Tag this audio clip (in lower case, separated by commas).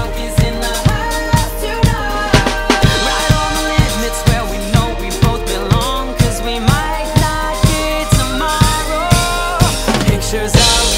drum kit, drum, musical instrument, music